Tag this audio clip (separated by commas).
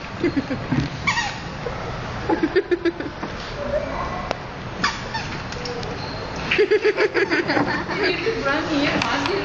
Speech